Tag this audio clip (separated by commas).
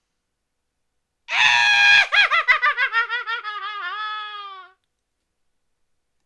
Laughter, Human voice